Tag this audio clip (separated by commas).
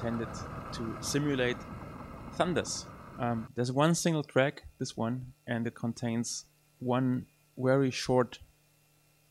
Speech